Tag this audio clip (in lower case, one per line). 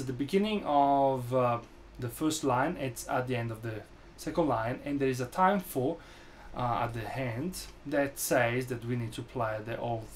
speech